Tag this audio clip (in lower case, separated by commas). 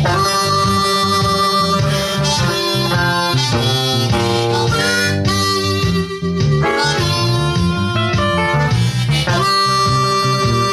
blues, music, electric guitar, guitar